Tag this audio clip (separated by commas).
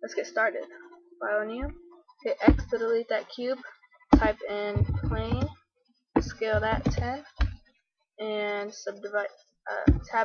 Speech